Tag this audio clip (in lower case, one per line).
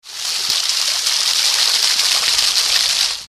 water
rain